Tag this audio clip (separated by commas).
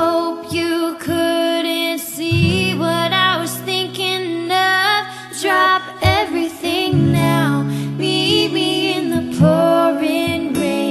Music